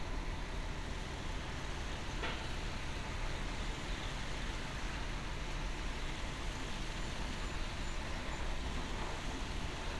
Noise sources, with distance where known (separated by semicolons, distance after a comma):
engine of unclear size